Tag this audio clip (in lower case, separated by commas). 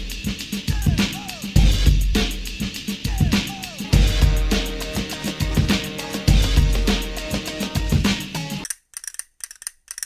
music, hip hop music